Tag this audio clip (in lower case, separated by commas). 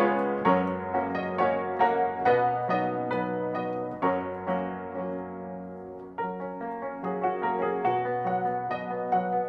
independent music, music